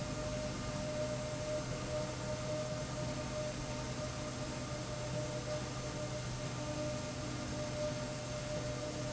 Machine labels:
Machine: slide rail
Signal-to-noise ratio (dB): -6 dB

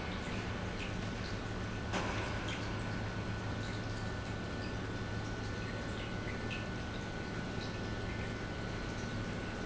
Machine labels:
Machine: pump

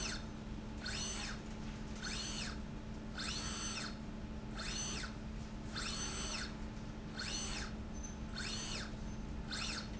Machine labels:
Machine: slide rail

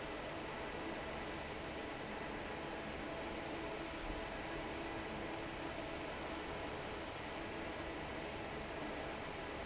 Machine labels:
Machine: fan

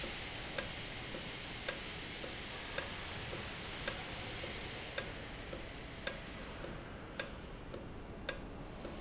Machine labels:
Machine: valve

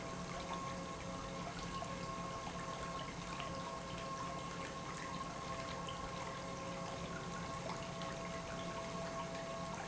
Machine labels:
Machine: pump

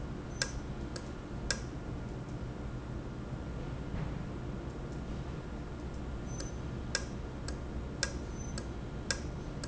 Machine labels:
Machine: valve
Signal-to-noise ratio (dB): -6 dB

